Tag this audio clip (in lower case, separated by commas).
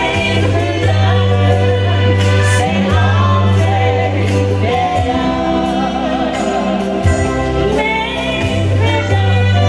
singing, music, music of latin america